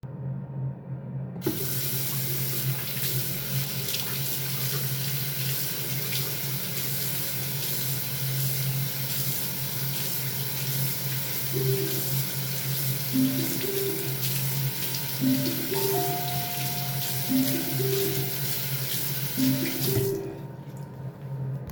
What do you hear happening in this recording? While I was waching my hands, somebody called me. And then the doorbell rung.